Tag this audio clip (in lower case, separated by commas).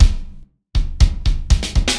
percussion, musical instrument, music, bass drum, snare drum, drum kit, drum